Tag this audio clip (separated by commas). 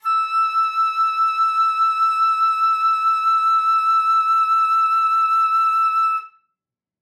Musical instrument, Music, Wind instrument